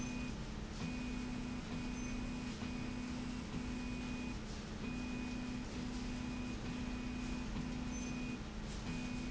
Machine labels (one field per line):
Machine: slide rail